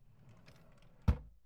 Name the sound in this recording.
wooden drawer closing